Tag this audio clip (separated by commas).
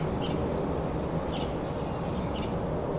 Animal, Bird, Wild animals